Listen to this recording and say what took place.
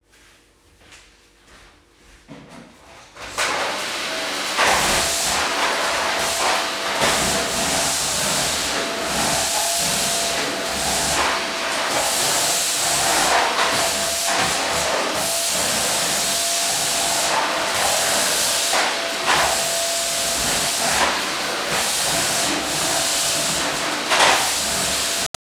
Turned on a vacuum cleaner and started cleaning the surface in my bedroom.